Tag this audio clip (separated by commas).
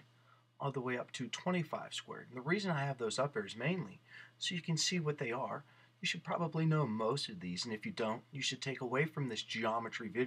Speech